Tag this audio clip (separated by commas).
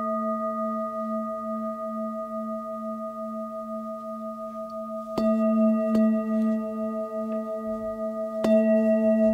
singing bowl